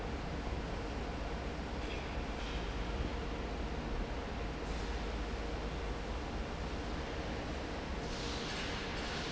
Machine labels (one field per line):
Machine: fan